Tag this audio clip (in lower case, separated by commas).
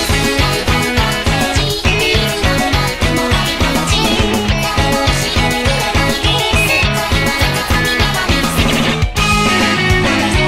plucked string instrument, music, musical instrument, guitar, acoustic guitar